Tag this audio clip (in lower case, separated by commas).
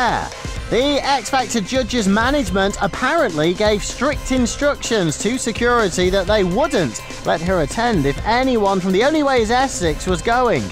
speech, music